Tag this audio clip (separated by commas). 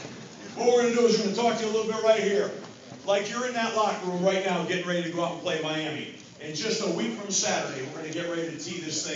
man speaking, monologue, Speech